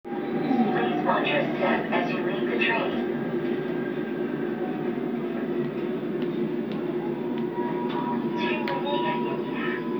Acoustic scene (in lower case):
subway train